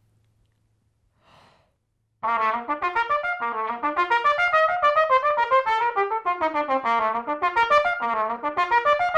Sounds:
trumpet, brass instrument

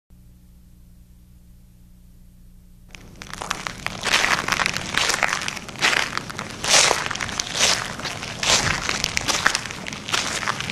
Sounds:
crackle

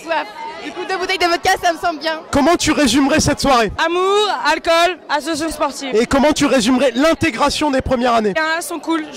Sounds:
speech

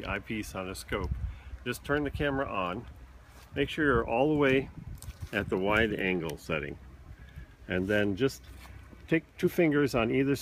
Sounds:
speech

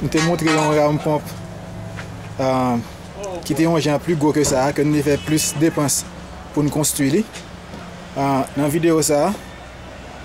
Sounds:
speech

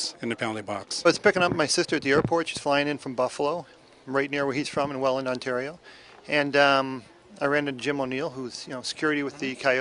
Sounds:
speech

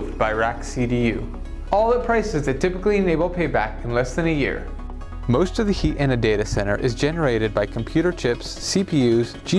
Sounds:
music, speech

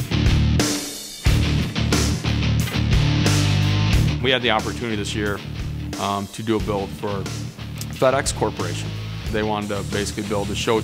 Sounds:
music, speech

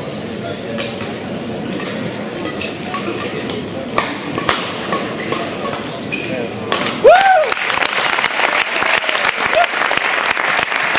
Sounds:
playing badminton

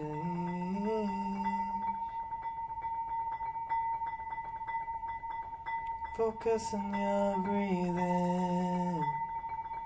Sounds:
glockenspiel, mallet percussion, xylophone

